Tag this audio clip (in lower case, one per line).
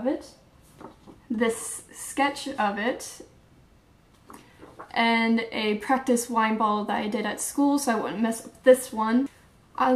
speech